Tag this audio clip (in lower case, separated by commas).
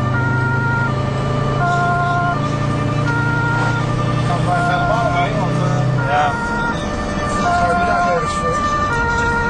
siren, ambulance (siren), emergency vehicle